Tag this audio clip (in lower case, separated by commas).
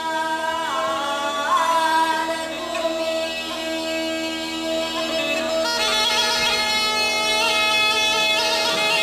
woodwind instrument, bagpipes